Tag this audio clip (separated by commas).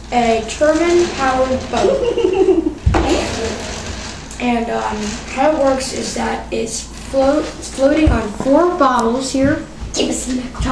Speech